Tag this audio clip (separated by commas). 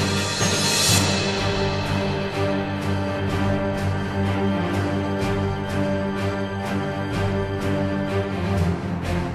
Music, Theme music